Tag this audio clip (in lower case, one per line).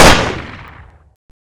explosion
gunfire